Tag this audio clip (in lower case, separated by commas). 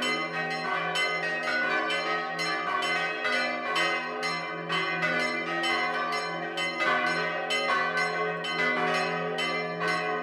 change ringing (campanology)